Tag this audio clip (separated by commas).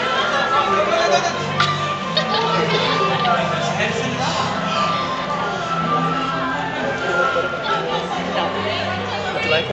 Speech, Music